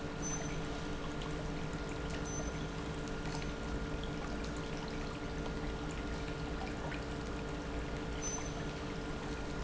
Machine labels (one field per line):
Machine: pump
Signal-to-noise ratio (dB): -6 dB